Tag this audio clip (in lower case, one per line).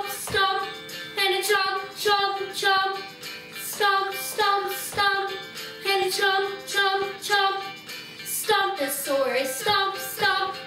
music